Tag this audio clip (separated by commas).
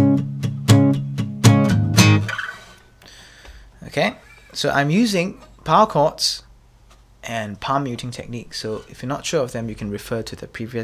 Music, Plucked string instrument, Acoustic guitar, Musical instrument, Strum, Guitar, Speech